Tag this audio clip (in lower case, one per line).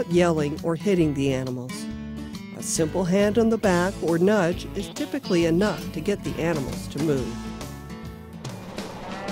music
speech